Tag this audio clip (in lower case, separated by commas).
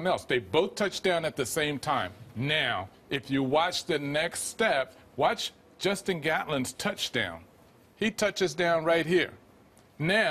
speech